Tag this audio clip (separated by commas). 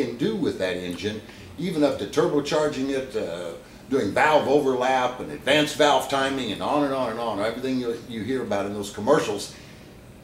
Speech